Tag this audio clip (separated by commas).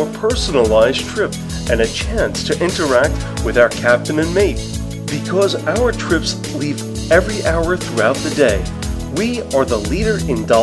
Music, Speech